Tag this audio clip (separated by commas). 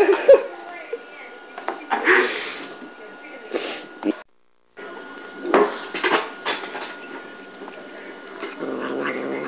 Caterwaul, Cat, Speech, Animal, Domestic animals